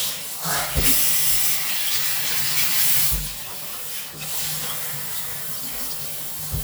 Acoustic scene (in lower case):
restroom